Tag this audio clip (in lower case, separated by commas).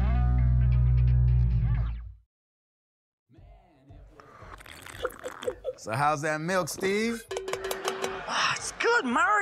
music, speech